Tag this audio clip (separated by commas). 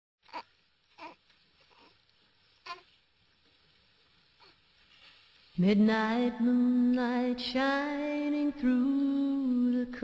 Lullaby